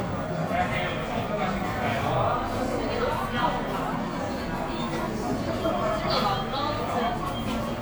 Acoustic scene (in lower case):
cafe